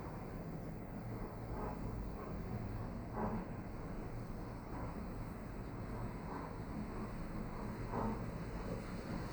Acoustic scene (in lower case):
elevator